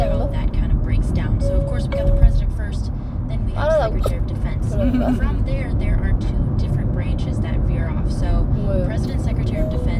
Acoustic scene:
car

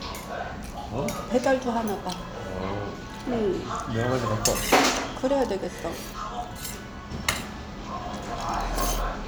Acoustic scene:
restaurant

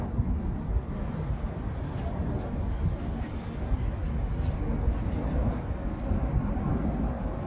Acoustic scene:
park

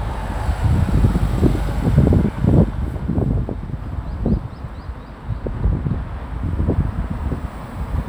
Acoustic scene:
street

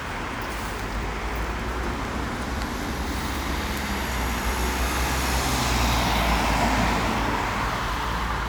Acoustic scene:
street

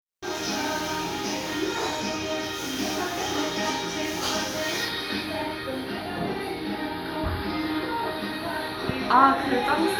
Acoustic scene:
restaurant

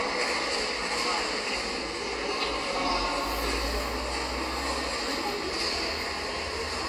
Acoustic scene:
subway station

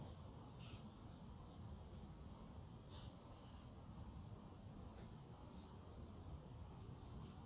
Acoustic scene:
park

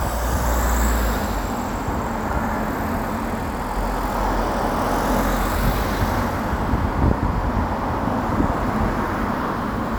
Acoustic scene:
street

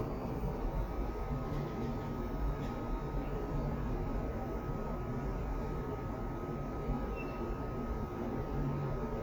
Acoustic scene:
elevator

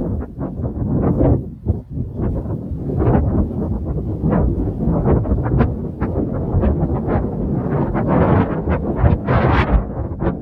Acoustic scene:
residential area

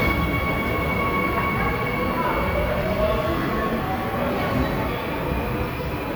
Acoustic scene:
subway station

